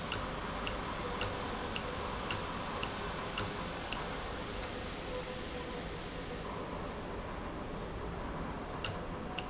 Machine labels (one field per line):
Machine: valve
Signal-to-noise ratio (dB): -6 dB